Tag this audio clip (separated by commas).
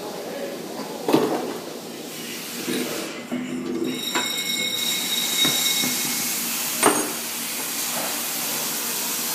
Speech